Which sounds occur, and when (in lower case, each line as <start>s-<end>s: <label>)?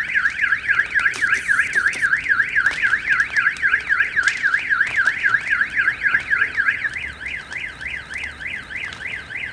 0.0s-9.5s: fire
0.0s-9.5s: siren
1.0s-1.4s: generic impact sounds
1.7s-2.0s: generic impact sounds
3.6s-4.1s: dog
6.3s-6.7s: dog
6.9s-9.5s: motor vehicle (road)